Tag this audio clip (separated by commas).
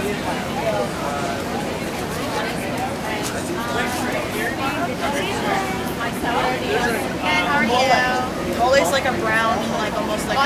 Speech